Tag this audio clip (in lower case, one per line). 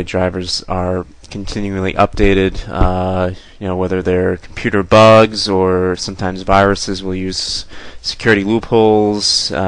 speech